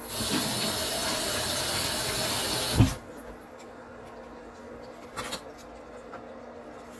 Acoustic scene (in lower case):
kitchen